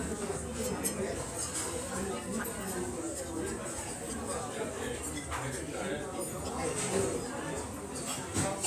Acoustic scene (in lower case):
restaurant